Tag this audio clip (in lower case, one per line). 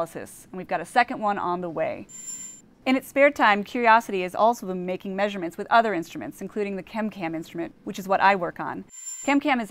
speech